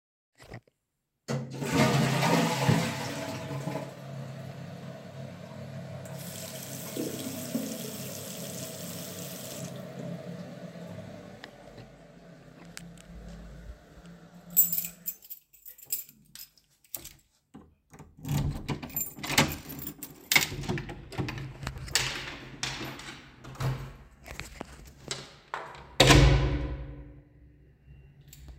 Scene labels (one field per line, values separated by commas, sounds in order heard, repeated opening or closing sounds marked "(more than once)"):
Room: lavatory, hallway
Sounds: toilet flushing, running water, keys, door (more than once)